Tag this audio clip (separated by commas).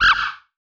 Animal